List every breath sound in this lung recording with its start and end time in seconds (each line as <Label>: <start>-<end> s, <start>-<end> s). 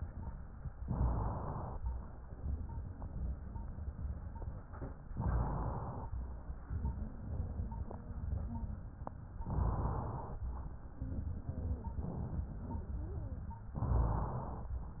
Inhalation: 0.81-1.77 s, 5.13-6.09 s, 9.47-10.44 s, 13.73-14.70 s